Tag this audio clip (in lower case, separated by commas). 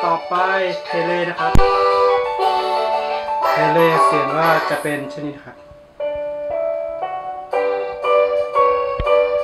speech, music